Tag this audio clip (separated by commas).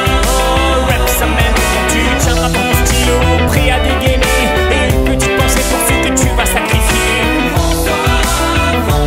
Music